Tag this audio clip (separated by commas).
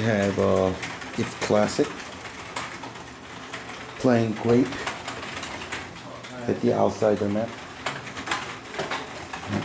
inside a small room, Speech